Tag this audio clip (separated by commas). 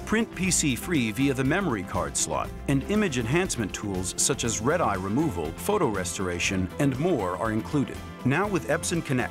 Music, Speech